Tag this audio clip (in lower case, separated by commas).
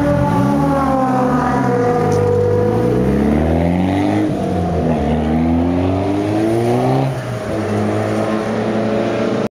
rustle